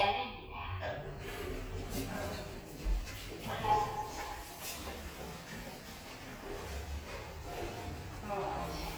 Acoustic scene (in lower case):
elevator